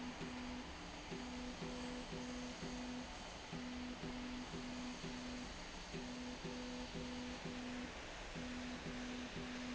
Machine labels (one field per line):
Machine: slide rail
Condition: normal